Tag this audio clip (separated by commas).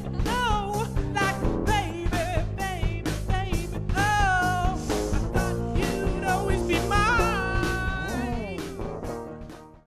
Music